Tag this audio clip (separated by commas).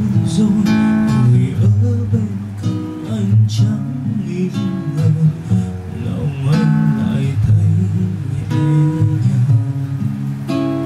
Musical instrument, Acoustic guitar, Music, Guitar, Plucked string instrument